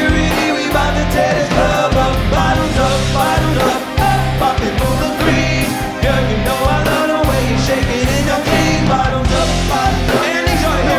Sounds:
music

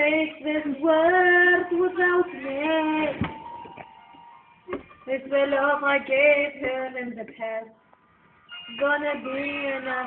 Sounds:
female singing
music

